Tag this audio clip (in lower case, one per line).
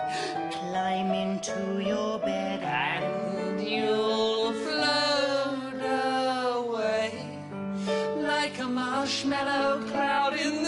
music
lullaby